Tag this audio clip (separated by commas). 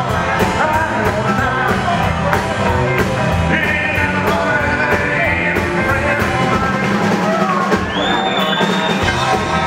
Music